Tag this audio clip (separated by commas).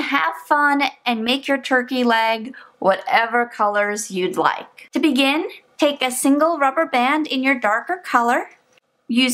Speech